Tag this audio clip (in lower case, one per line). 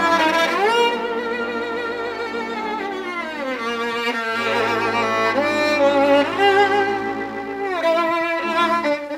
musical instrument
fiddle
music